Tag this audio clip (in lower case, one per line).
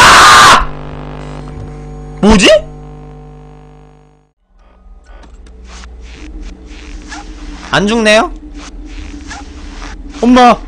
people screaming